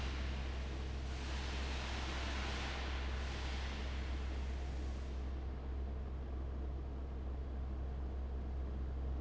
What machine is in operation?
fan